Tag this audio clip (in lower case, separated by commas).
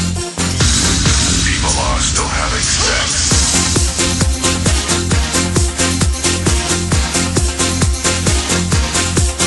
music, speech